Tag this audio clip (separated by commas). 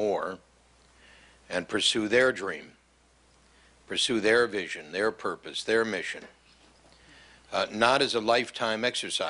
Speech